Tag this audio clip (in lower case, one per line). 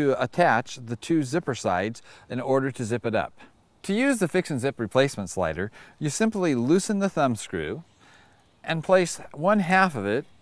speech